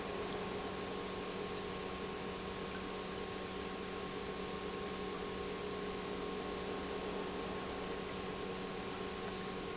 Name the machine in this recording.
pump